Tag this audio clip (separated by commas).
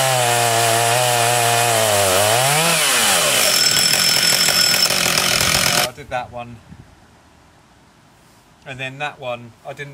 Speech, Wood, outside, rural or natural, Chainsaw